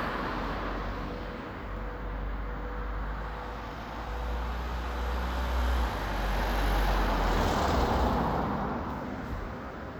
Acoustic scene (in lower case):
residential area